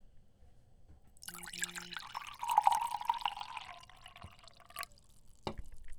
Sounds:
Liquid

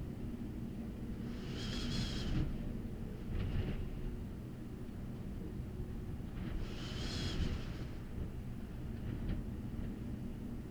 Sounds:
Wind

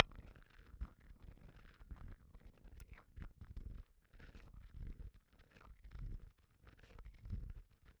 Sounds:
Glass

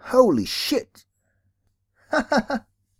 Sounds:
Human voice, man speaking, Speech

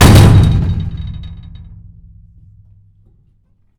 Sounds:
Door, Domestic sounds, Slam

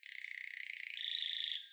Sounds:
Animal, bird call, Wild animals, Bird, tweet

